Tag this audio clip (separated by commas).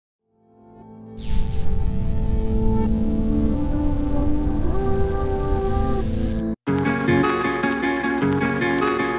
Ambient music, Music